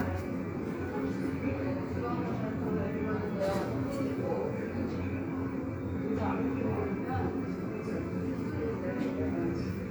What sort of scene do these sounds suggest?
subway station